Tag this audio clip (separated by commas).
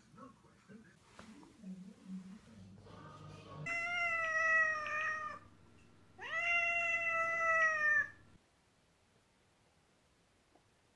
cat caterwauling